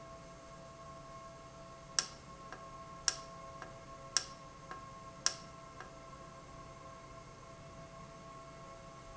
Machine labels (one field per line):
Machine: valve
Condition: normal